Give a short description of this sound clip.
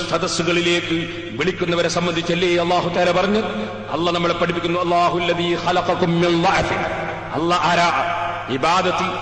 A male speech on a crowd